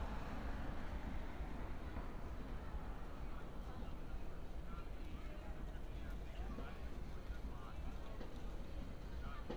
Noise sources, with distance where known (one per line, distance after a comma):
person or small group talking, near